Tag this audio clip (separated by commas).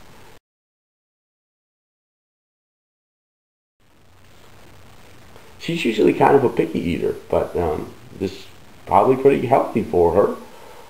Speech